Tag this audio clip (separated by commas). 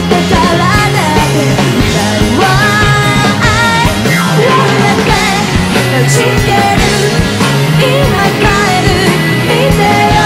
Singing, Grunge, Music